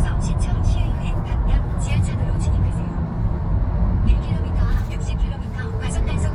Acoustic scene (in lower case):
car